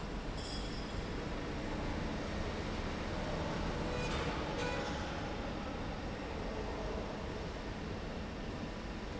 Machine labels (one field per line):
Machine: slide rail